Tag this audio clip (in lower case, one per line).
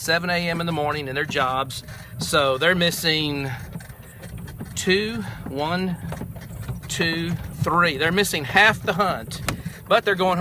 speech
male speech